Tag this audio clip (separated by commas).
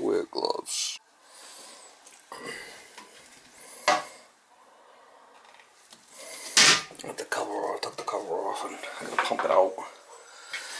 Speech